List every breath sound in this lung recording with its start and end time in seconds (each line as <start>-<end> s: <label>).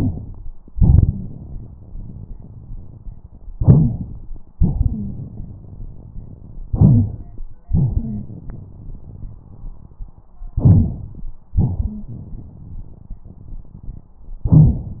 0.73-3.42 s: exhalation
1.06-1.30 s: wheeze
3.55-4.42 s: inhalation
4.58-6.61 s: exhalation
4.80-5.13 s: wheeze
6.70-7.40 s: inhalation
7.73-10.25 s: exhalation
7.97-8.25 s: wheeze
10.57-11.31 s: inhalation
11.58-14.10 s: exhalation
11.79-12.05 s: wheeze